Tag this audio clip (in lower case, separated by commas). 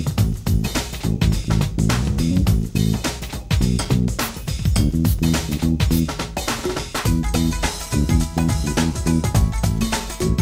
soundtrack music, video game music, music